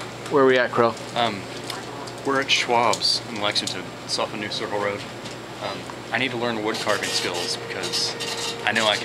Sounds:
Speech

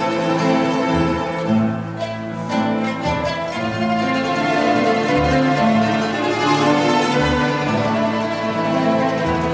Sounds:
Plucked string instrument, Strum, Acoustic guitar, Guitar, Music, Orchestra, Musical instrument

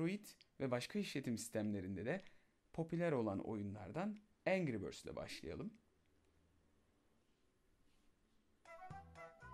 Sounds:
Speech, Music

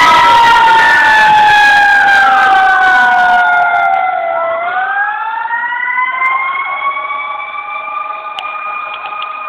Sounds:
Fire engine, Emergency vehicle, Vehicle

